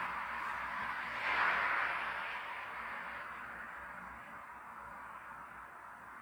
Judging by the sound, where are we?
on a street